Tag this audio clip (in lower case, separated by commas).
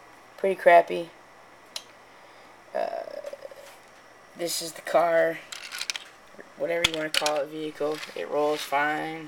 speech